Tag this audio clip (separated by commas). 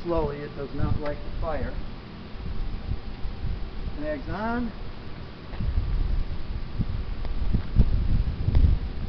Speech